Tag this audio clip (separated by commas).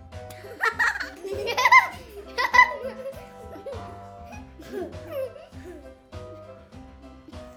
Laughter, Human voice